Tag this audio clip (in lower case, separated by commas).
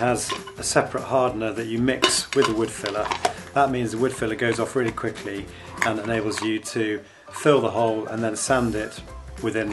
music, speech